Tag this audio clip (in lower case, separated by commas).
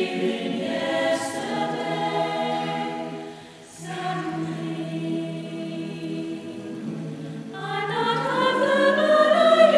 music, male singing, female singing, choir